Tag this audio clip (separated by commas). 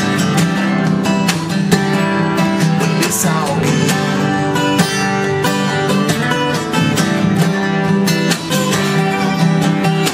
Singing, Music